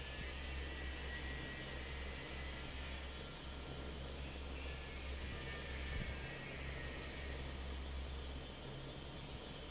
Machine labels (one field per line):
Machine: fan